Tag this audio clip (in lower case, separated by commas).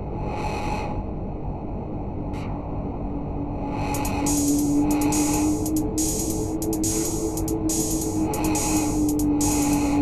electronic music, music